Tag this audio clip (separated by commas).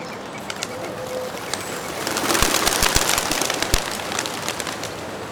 Bird, Animal, Wild animals